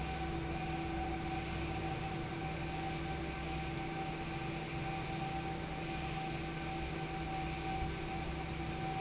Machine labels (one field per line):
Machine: fan